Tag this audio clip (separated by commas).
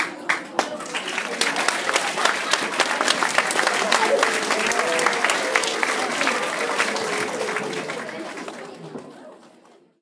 Human group actions, Applause